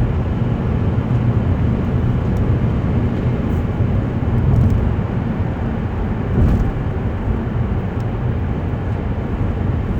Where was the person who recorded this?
in a car